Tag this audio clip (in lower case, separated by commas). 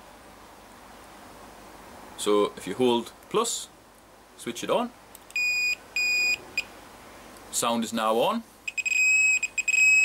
outside, rural or natural, speech